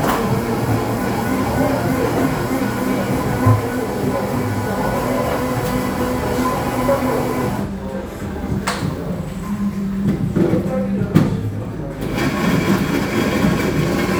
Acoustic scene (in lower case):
cafe